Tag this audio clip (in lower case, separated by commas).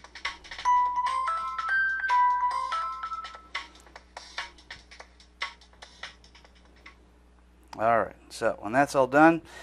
speech, ringtone, music